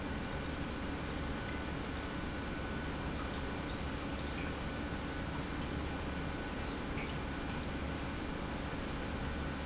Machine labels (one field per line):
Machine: pump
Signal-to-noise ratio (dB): -6 dB